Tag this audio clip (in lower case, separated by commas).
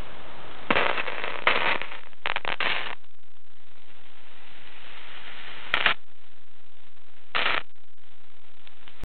radio, static